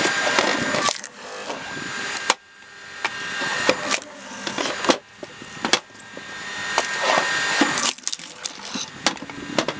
Following some machine operating, wood is chopped